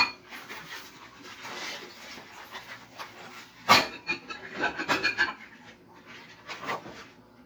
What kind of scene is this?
kitchen